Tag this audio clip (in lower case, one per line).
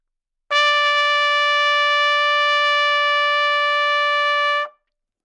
brass instrument
music
trumpet
musical instrument